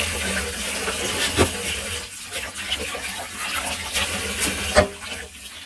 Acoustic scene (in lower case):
kitchen